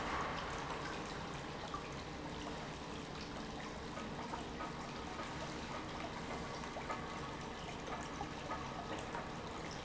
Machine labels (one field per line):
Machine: pump